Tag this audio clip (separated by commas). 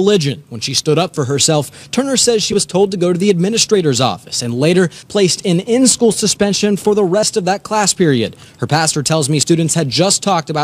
Speech